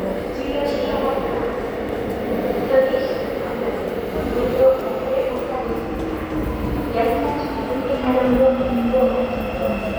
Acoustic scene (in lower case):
subway station